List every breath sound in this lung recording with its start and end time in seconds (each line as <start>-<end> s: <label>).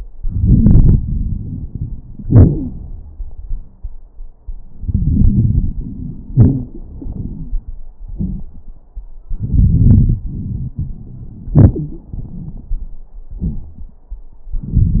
0.19-2.21 s: inhalation
0.19-2.21 s: crackles
2.24-3.21 s: exhalation
2.48-2.69 s: wheeze
4.64-6.33 s: inhalation
4.64-6.33 s: crackles
6.35-6.74 s: wheeze
6.35-7.81 s: exhalation
9.27-11.54 s: inhalation
9.27-11.54 s: crackles
11.56-12.88 s: exhalation
11.74-12.11 s: wheeze